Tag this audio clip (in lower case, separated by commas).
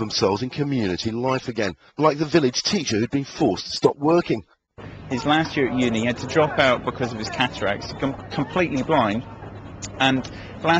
speech